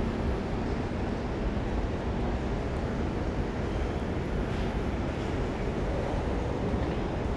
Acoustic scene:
subway station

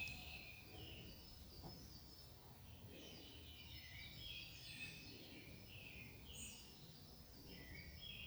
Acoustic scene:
park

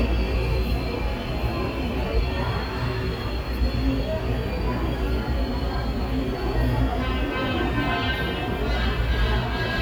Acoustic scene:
subway station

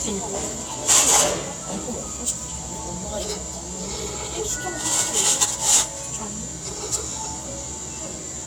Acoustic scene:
cafe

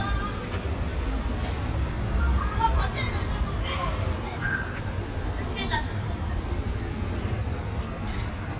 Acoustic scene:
residential area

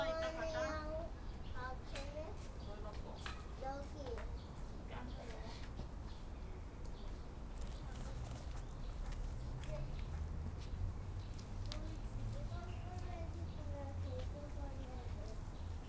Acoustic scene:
park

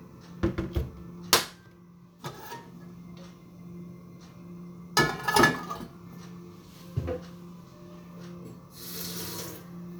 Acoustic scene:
kitchen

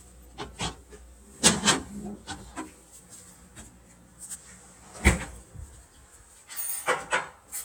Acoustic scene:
kitchen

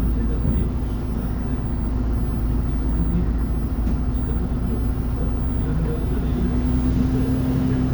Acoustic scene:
bus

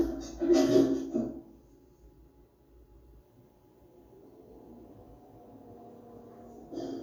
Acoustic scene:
elevator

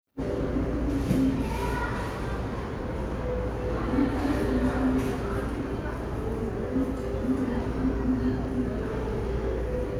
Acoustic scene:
crowded indoor space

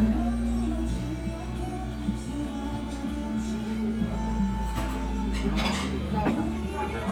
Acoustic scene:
crowded indoor space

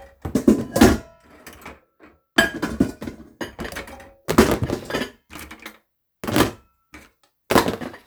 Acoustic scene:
kitchen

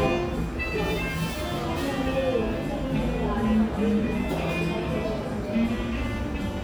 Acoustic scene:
cafe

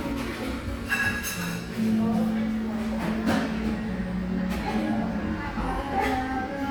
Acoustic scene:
cafe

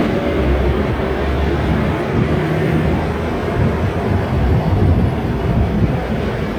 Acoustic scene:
street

